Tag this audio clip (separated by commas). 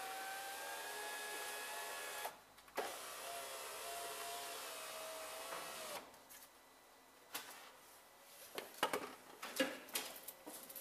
opening or closing car electric windows